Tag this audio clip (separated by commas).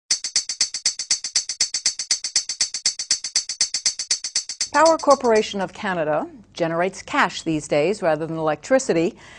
Speech, Music